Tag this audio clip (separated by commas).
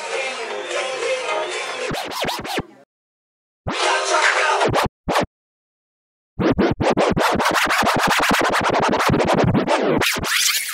inside a public space, Music